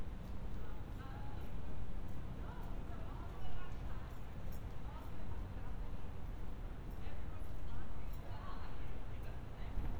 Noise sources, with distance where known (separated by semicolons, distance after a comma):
person or small group talking, far